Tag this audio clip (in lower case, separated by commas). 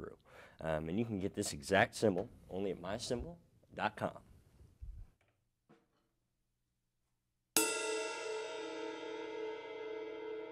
cymbal